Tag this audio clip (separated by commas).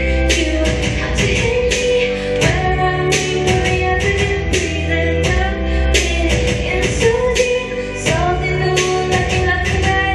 Music, Female singing